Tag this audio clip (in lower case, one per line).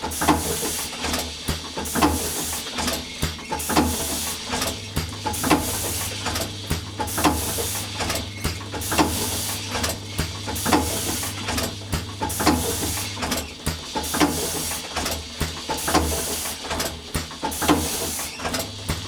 mechanisms